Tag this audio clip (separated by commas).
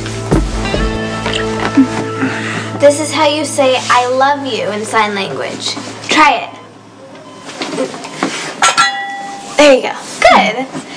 inside a small room, Music, Speech